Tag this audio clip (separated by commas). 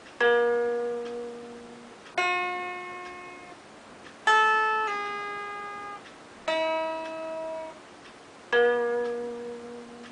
Acoustic guitar, Plucked string instrument, Musical instrument, Music, Guitar